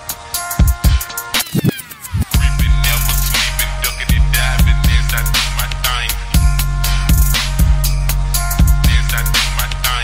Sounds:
Music

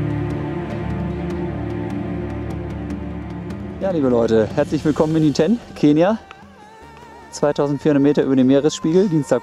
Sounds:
Speech, Music

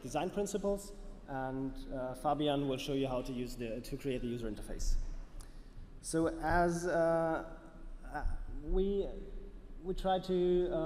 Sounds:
Speech

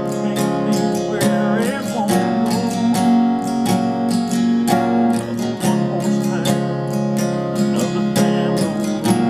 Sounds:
Guitar, Strum, Plucked string instrument, Musical instrument, Acoustic guitar, Music

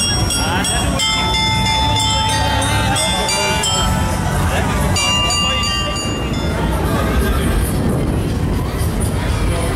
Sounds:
Music, Speech

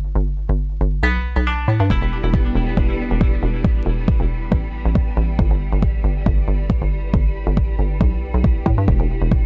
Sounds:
Music

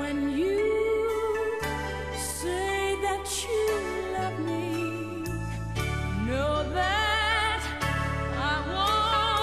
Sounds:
Music

